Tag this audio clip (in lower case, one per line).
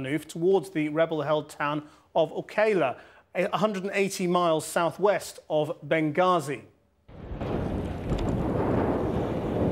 outside, rural or natural
speech